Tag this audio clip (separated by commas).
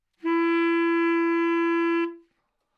Wind instrument, Music, Musical instrument